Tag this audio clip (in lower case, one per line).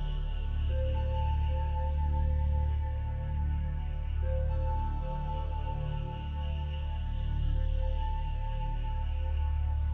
music